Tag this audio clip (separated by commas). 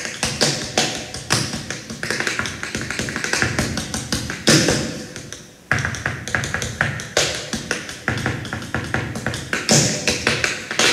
tap dancing